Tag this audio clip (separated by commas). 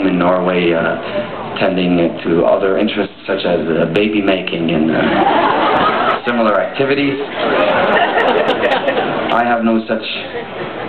inside a large room or hall, Speech